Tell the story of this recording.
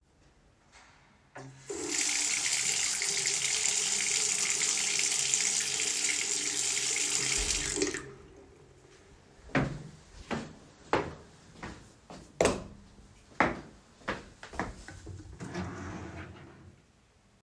I washed my hands, went into the bedroom and turned on the light. Then, i walked to the wardrobe and opened the drawer.